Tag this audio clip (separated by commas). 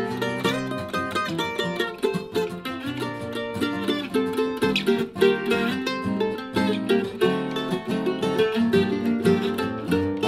Musical instrument, Plucked string instrument, Music